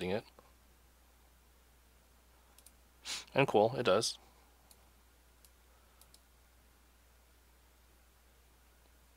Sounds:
Speech

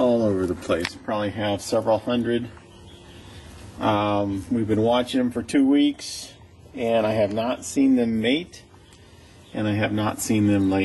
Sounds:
Speech

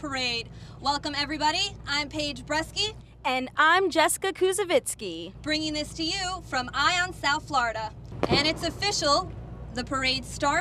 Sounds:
Speech

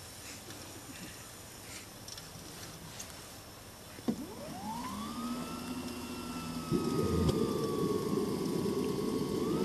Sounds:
Helicopter

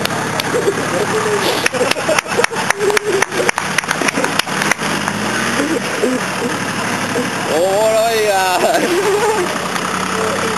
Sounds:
Truck, Speech, Car, Vehicle

